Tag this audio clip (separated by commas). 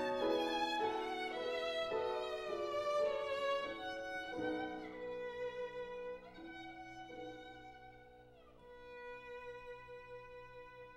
Violin, Music, Musical instrument